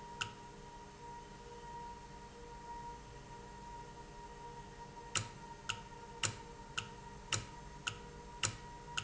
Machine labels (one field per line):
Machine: valve